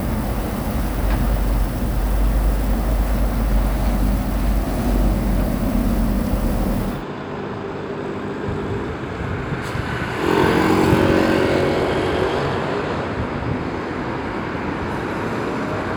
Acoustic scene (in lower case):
street